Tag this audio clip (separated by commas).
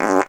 Fart